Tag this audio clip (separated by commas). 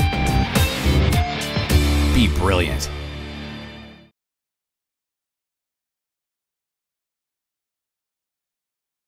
Music, Speech